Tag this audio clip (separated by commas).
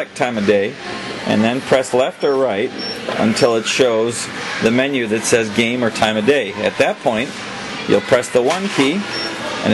Speech